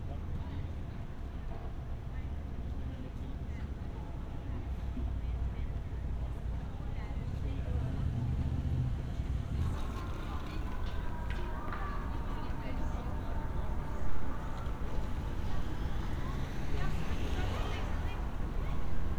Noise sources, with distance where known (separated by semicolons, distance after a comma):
person or small group talking